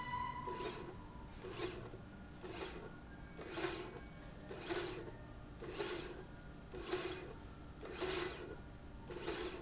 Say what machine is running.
slide rail